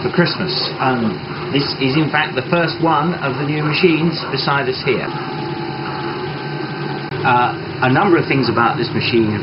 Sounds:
speech
printer

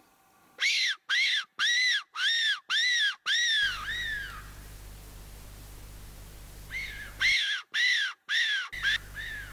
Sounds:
animal
wild animals

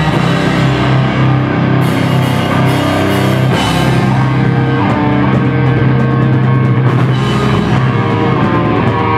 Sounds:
rock music
drum kit
musical instrument
guitar
music
drum

